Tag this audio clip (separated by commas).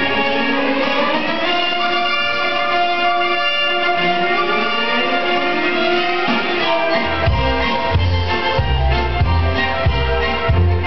Exciting music, Music